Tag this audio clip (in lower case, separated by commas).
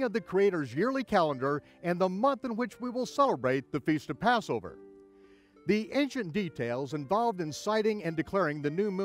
speech, music